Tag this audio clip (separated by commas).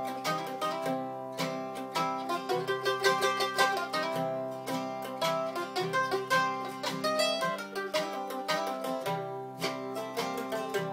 Music, Musical instrument, Plucked string instrument, Country, Mandolin